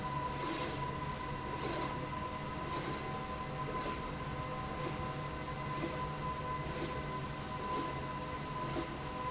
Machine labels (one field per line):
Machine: slide rail